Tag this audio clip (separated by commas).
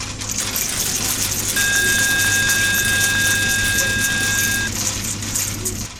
Coin (dropping), home sounds